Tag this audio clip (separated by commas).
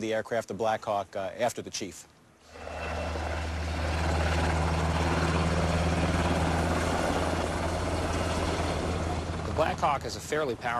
Speech, Helicopter, Vehicle, Aircraft